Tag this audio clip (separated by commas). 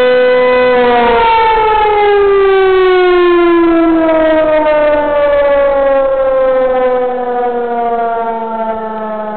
Siren, Civil defense siren